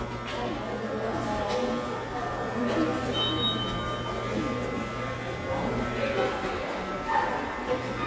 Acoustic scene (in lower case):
subway station